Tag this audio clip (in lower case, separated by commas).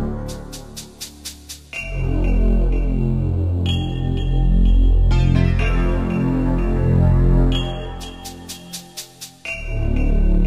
music, video game music